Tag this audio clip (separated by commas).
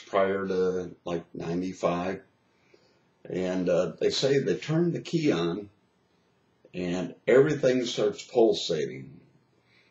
Speech